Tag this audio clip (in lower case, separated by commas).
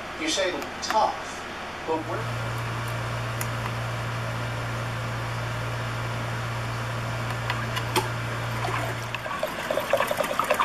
dribble